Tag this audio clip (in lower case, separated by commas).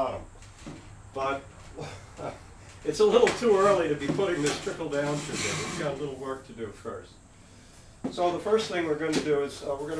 speech